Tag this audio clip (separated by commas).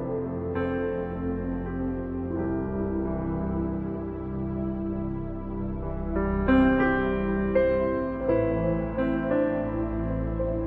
Music